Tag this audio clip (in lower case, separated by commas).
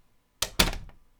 door, slam, domestic sounds